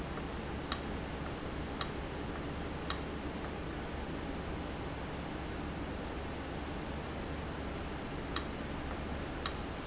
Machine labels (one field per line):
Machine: valve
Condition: abnormal